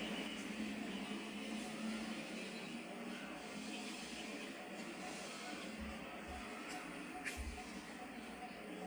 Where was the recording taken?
in a park